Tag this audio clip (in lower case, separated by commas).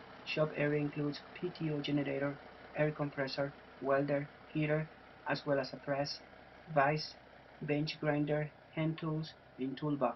truck, vehicle, speech